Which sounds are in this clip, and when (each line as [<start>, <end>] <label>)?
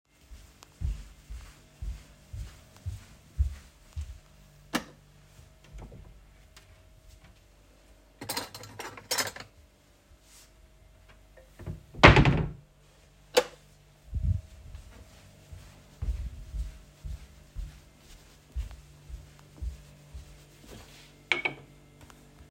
[0.02, 4.42] footsteps
[4.69, 4.94] light switch
[5.21, 8.15] wardrobe or drawer
[8.21, 9.58] cutlery and dishes
[11.62, 12.69] wardrobe or drawer
[13.29, 13.60] light switch
[14.11, 21.09] footsteps
[21.23, 21.65] cutlery and dishes